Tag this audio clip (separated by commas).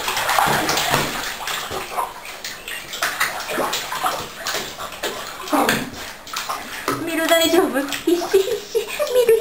Domestic animals, Speech, Animal, Dog